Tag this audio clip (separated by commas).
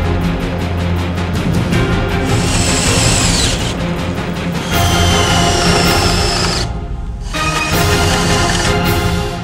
Music, Speech